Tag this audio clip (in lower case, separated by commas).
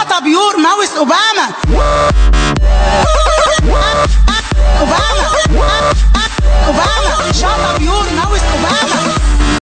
music, speech